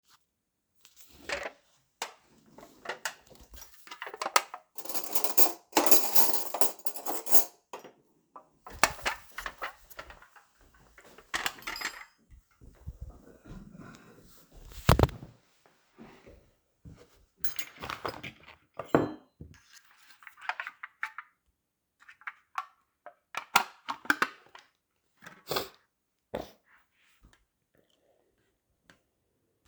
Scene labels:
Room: kitchen; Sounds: wardrobe or drawer, cutlery and dishes

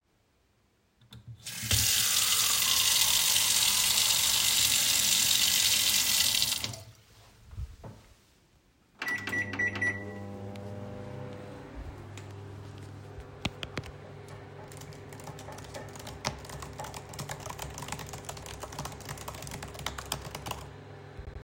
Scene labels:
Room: kitchen; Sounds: running water, footsteps, microwave, keyboard typing

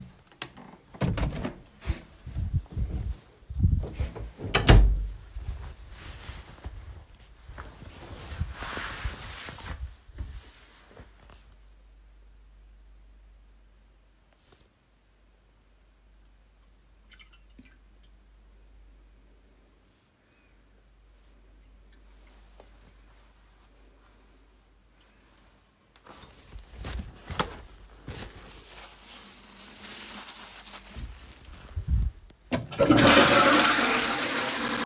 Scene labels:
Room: bathroom; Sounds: door, footsteps, toilet flushing

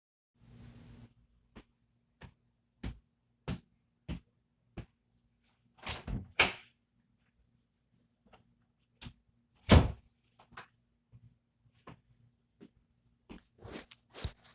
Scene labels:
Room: hallway; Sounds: footsteps, door (more than once)

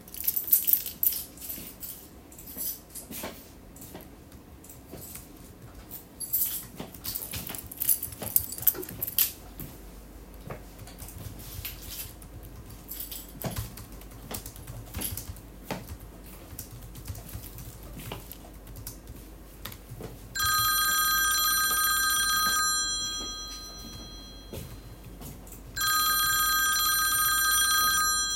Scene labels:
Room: office; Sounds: keys, footsteps, keyboard typing, phone ringing

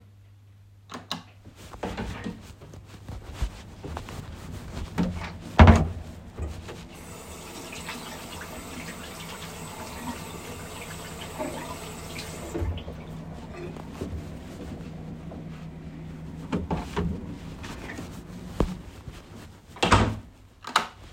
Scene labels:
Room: bedroom; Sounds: light switch, door (more than once), running water

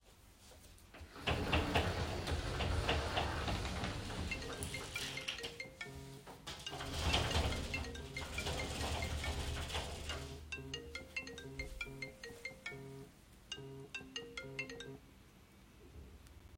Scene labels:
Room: bedroom; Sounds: wardrobe or drawer (more than once), phone ringing

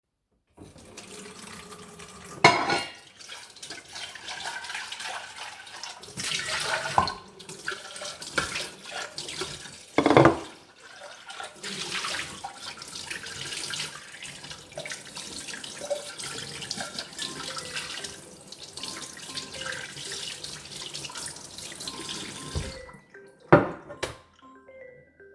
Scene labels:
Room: kitchen; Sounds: running water, cutlery and dishes, phone ringing

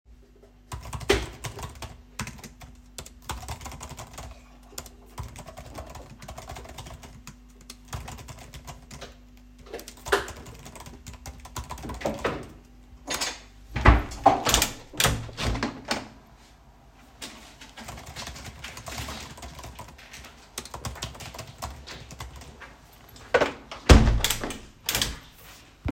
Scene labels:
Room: office; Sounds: keyboard typing, window (more than once)

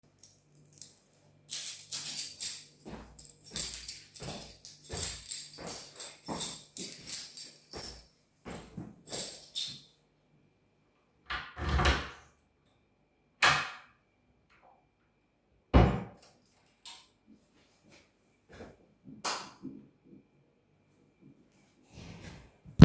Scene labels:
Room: kitchen; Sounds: keys, footsteps, door (more than once), light switch

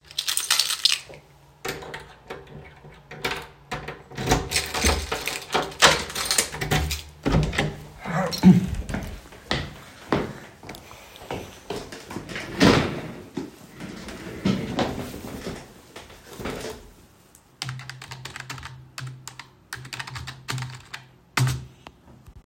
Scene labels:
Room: bedroom; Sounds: keys, door, footsteps, keyboard typing

